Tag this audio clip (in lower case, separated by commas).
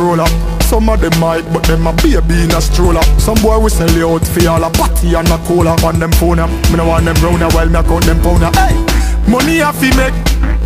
music